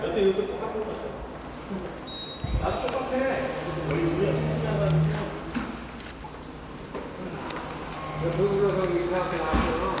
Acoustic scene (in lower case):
subway station